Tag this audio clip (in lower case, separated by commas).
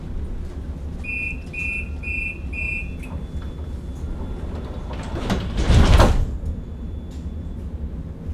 train, rail transport, vehicle